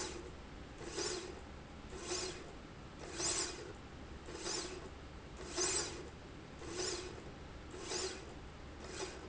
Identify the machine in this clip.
slide rail